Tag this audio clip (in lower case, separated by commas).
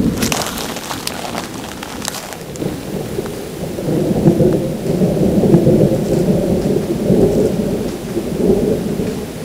thunderstorm